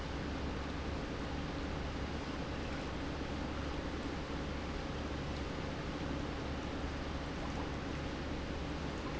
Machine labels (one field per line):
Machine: pump